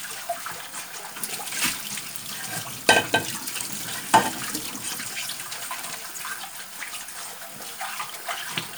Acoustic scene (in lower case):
kitchen